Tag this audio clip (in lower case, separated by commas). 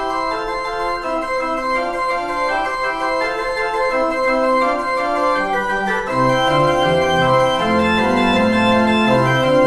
christian music, music, organ